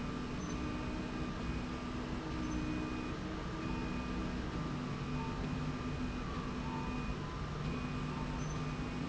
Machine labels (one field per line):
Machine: slide rail